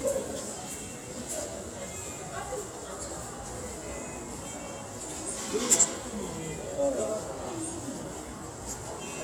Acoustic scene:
subway station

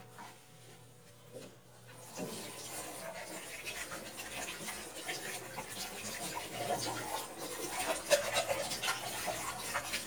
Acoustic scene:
kitchen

